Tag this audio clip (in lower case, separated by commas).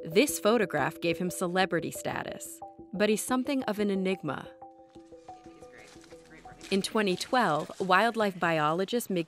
speech